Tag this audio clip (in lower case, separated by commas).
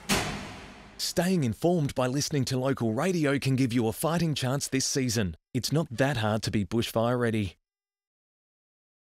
speech